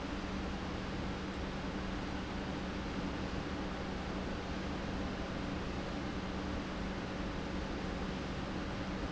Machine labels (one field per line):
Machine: pump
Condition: normal